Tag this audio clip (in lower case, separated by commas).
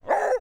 dog, domestic animals, animal, bark